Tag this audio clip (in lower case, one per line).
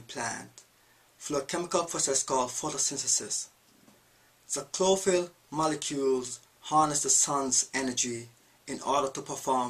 speech